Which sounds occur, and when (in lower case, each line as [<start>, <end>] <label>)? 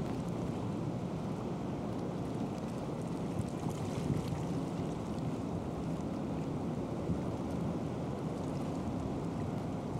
[0.00, 9.95] ship
[0.00, 9.95] water
[0.00, 9.95] wind